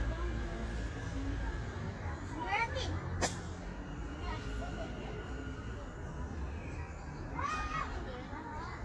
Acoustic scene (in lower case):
park